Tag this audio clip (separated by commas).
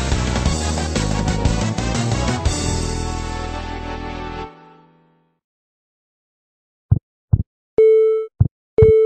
Music